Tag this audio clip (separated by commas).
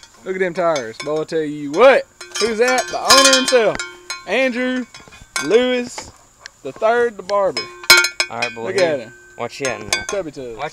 bovinae cowbell